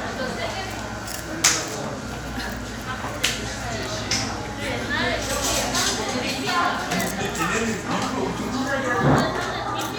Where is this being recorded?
in a cafe